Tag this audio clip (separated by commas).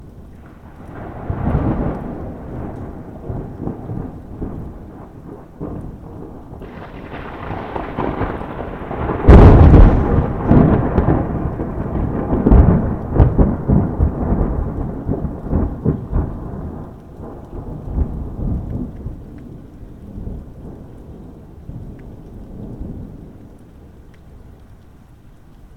Thunderstorm, Thunder